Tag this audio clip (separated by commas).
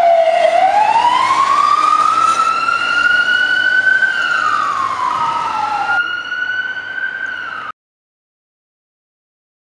Emergency vehicle, Siren, Police car (siren)